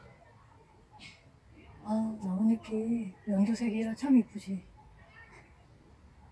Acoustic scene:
park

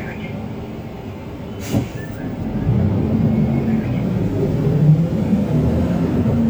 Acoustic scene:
bus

